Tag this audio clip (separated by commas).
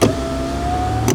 Motor vehicle (road), Car, Vehicle